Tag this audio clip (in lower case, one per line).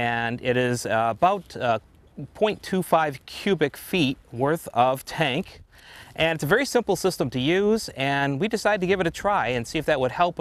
speech